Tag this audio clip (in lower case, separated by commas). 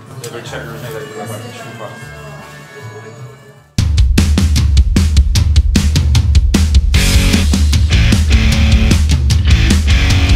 speech, music